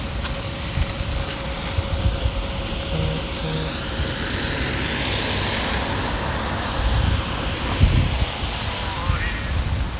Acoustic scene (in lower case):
residential area